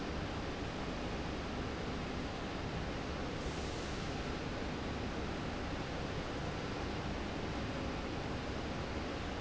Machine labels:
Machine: slide rail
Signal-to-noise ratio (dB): -6 dB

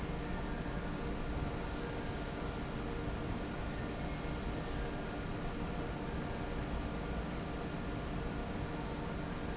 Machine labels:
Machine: fan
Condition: normal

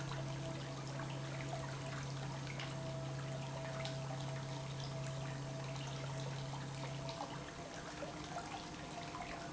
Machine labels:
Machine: pump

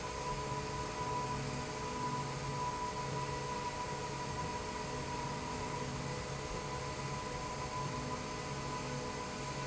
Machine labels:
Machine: slide rail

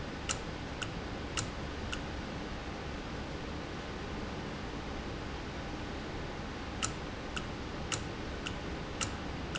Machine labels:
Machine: valve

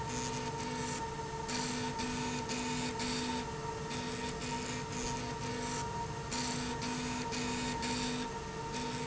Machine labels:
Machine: slide rail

